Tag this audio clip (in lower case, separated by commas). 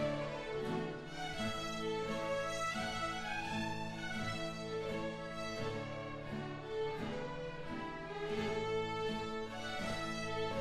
fiddle, musical instrument, music